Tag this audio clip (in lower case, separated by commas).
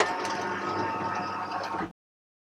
home sounds, sliding door, door